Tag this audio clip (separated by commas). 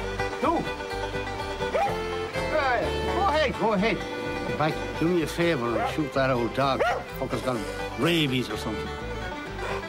Bow-wow, Speech, Dog, pets, Animal, Music